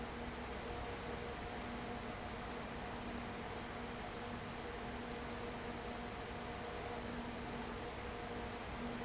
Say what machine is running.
fan